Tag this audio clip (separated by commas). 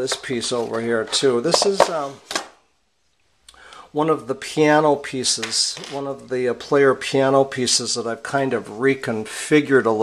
inside a small room, Speech